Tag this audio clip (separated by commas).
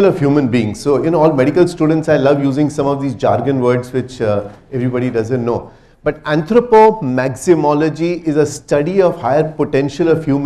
Narration, Speech, Male speech